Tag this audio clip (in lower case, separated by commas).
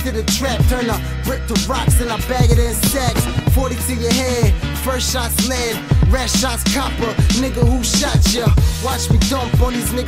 music